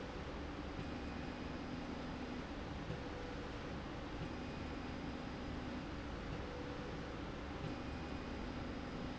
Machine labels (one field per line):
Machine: slide rail